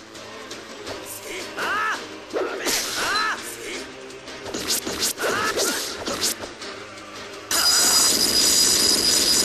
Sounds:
Music

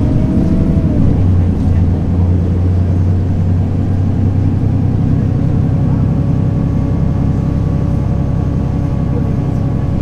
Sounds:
Bus, Vehicle

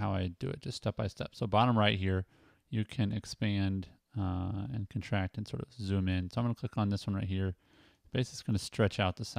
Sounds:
Speech

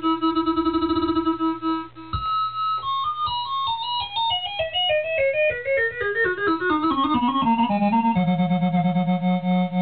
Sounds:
Musical instrument, Music, Keyboard (musical), Electric piano, Piano

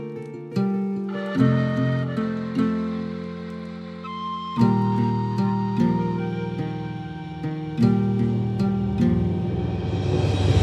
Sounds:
Music

